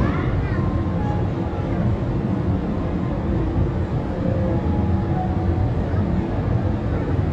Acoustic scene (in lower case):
park